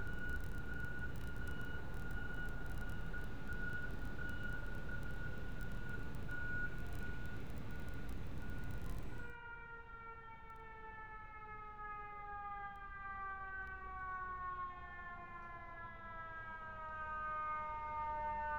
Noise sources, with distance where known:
unidentified alert signal

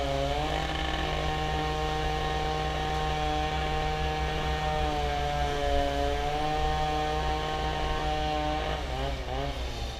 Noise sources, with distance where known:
unidentified powered saw, near

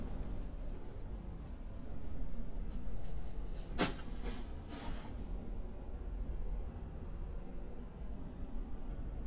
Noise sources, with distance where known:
background noise

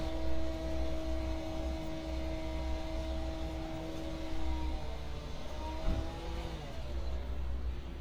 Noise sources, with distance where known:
unidentified powered saw

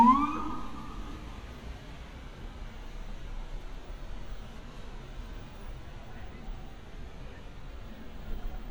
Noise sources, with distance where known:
unidentified alert signal, near

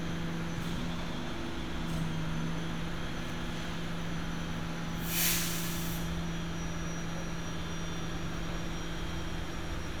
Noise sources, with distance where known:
large-sounding engine

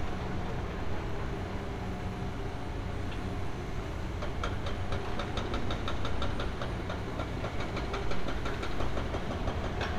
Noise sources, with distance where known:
unidentified impact machinery

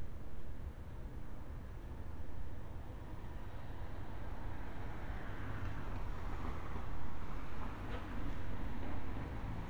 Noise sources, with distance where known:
medium-sounding engine, far

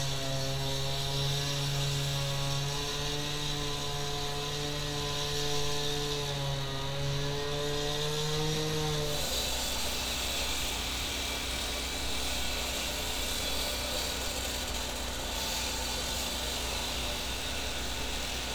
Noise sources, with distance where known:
small or medium rotating saw, near

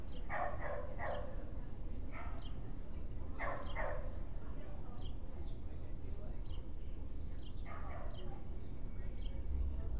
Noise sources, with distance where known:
person or small group talking
dog barking or whining, near

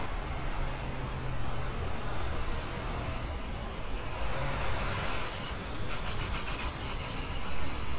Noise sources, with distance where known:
large-sounding engine, near

